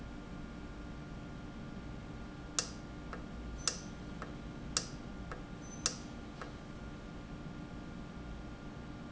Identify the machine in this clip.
valve